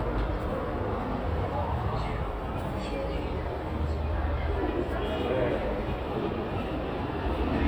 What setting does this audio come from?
subway station